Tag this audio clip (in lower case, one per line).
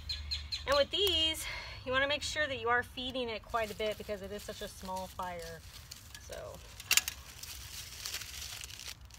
outside, rural or natural
speech